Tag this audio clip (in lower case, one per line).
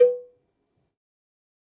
cowbell
bell